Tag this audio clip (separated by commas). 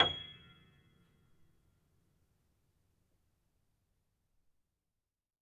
Piano, Musical instrument, Keyboard (musical), Music